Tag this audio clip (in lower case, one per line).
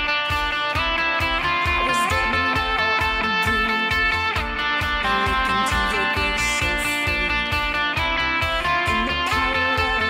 music
plucked string instrument
electric guitar
guitar
musical instrument